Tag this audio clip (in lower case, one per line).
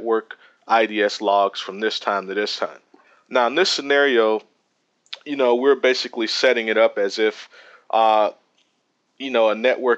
speech